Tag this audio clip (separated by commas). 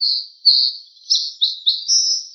tweet, Wild animals, Bird vocalization, Bird, Animal